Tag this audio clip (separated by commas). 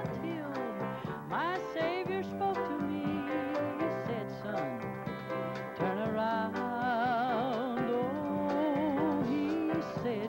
Music, Singing